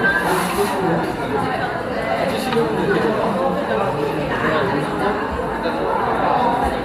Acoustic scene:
cafe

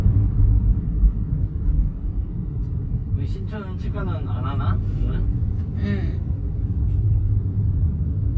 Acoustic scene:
car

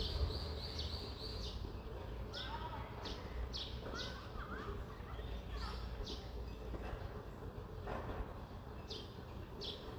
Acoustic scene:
residential area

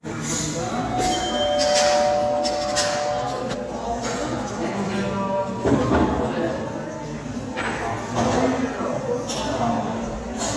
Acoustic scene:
cafe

